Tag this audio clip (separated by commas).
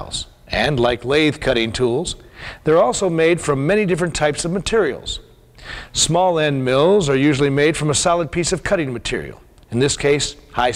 Speech